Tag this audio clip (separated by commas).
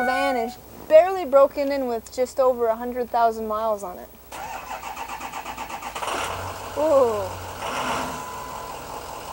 Speech, Vehicle, Truck